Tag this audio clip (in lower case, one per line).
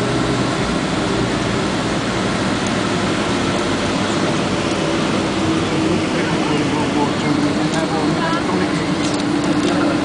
vehicle
fixed-wing aircraft
outside, urban or man-made
aircraft
speech